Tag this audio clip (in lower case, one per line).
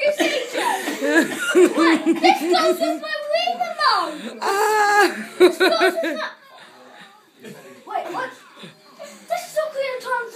speech
child speech
inside a small room